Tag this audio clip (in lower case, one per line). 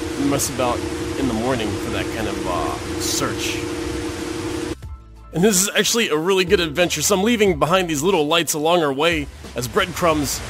white noise